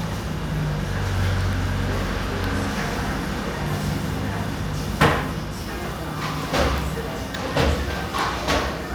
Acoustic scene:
cafe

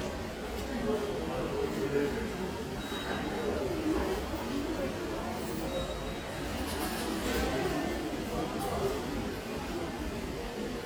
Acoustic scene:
crowded indoor space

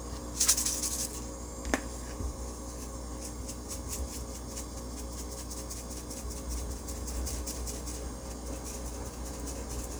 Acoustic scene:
kitchen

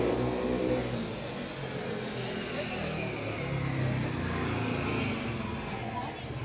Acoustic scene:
street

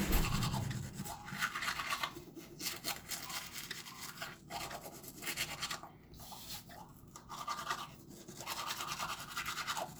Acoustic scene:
restroom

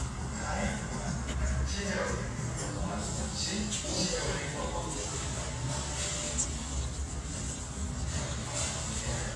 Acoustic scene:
restaurant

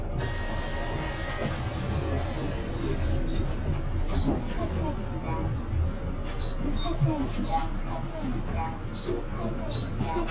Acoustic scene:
bus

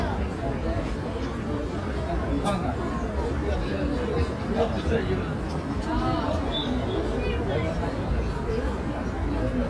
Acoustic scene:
residential area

